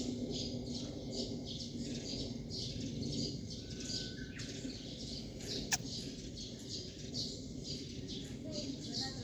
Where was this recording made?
in a park